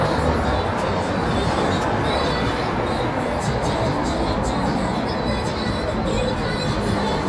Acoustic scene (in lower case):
street